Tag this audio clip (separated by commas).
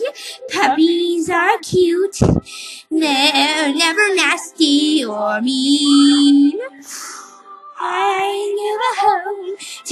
Speech